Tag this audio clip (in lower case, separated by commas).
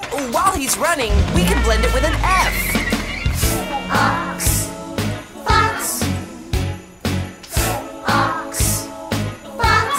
speech, music